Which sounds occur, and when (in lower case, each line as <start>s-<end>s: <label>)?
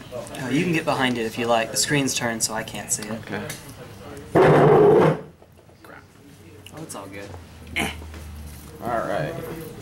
0.0s-9.8s: mechanisms
0.1s-9.8s: conversation
0.1s-3.5s: man speaking
0.3s-1.7s: shuffling cards
4.3s-5.2s: generic impact sounds
6.6s-7.3s: man speaking
7.7s-8.1s: man speaking
8.0s-8.3s: generic impact sounds
8.2s-9.8s: shuffling cards
8.7s-9.8s: man speaking